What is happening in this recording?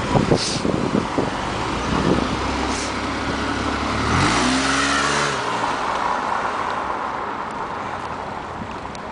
Wind rustles, then vehicles pass by quickly